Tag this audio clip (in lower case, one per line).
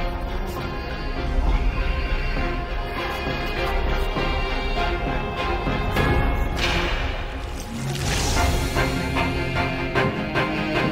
musical instrument
fiddle
music